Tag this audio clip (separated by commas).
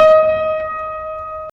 Musical instrument, Keyboard (musical), Piano, Music